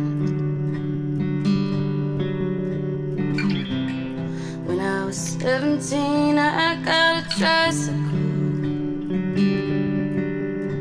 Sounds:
music, tender music

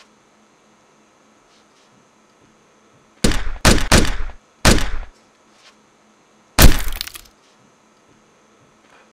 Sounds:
machine gun

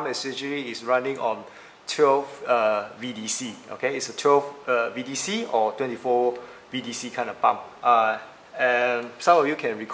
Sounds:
speech

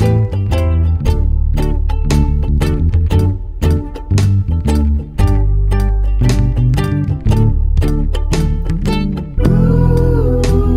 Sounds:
music

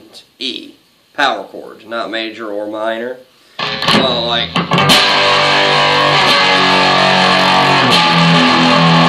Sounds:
speech, music

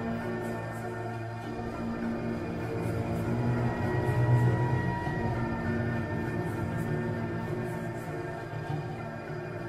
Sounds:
music

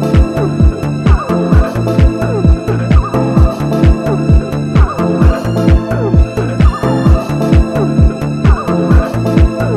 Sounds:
music

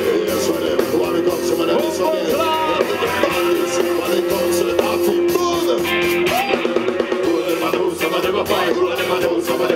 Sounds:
orchestra, music, speech

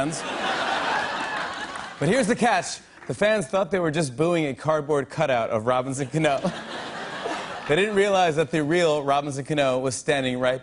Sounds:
speech

